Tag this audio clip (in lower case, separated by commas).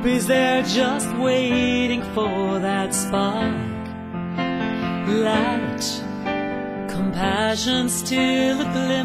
music, tender music